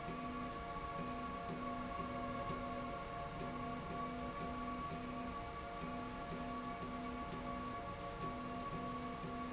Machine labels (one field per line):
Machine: slide rail